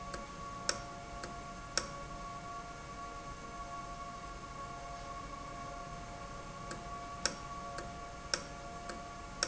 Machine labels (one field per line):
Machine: valve